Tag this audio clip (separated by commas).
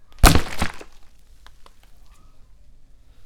splatter, Liquid